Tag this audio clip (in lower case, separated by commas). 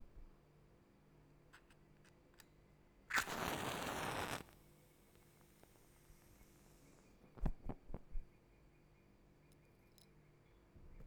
fire